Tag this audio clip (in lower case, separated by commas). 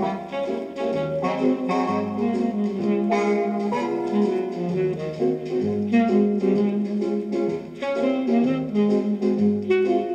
soundtrack music, background music, music